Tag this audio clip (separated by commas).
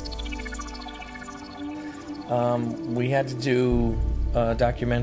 Speech, Music